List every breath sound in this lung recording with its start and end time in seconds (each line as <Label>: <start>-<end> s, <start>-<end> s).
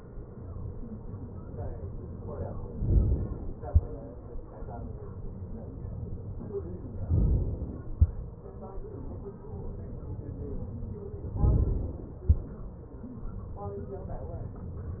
Inhalation: 2.81-3.67 s, 7.09-7.96 s, 11.41-12.28 s